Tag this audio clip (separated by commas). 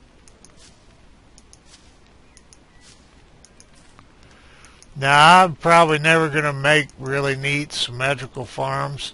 Speech